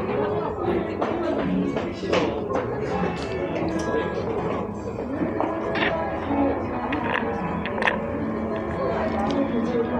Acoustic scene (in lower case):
cafe